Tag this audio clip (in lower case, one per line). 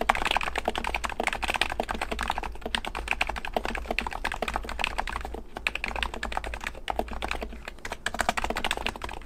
computer keyboard
typing